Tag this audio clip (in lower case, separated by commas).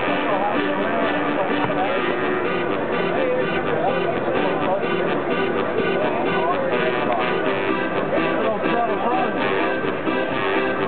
music, speech